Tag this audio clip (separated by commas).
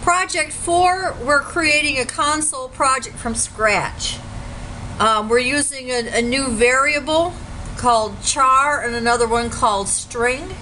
Speech